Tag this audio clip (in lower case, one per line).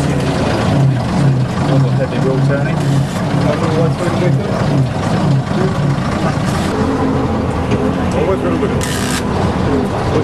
speech
bus